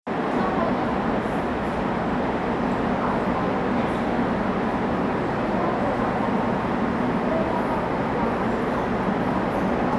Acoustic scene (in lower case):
subway station